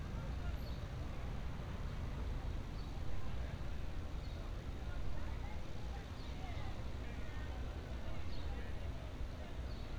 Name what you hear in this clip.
unidentified human voice